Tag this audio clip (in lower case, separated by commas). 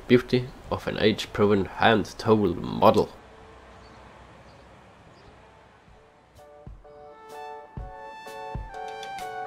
speech, music